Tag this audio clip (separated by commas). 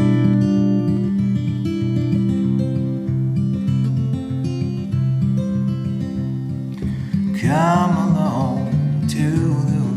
Music